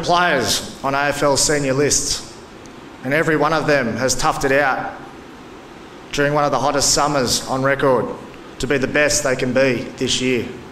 A man speaking